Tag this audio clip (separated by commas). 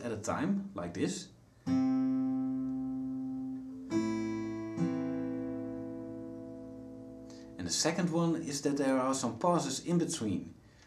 Guitar, Acoustic guitar, Music, Plucked string instrument, Strum, Speech, Musical instrument